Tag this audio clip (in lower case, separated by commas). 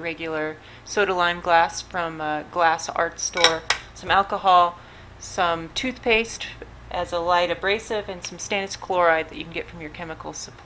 speech